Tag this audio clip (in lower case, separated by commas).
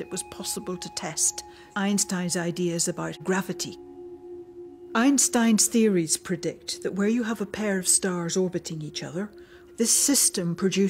speech, music